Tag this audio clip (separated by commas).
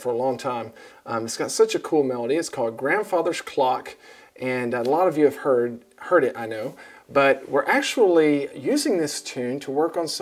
Speech